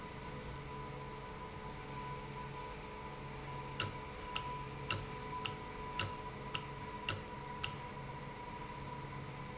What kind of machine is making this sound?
valve